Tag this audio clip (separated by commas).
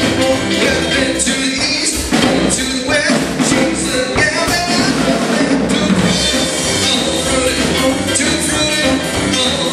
Country, Music